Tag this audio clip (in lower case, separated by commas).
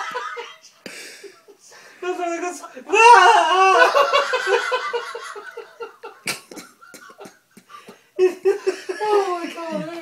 speech